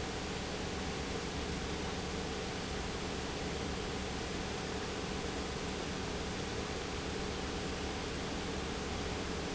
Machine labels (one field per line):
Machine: pump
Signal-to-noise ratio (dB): -6 dB